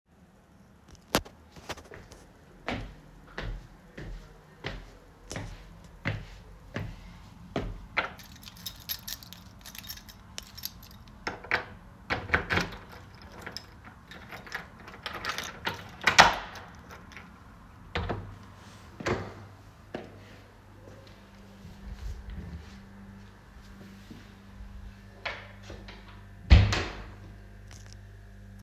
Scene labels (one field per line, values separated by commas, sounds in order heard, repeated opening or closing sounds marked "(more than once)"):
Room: hallway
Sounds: footsteps, keys, door (more than once)